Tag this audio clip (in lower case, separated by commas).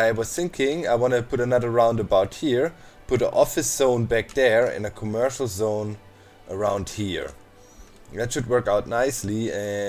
music, speech